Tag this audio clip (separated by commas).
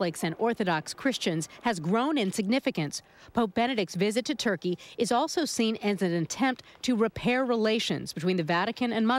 Speech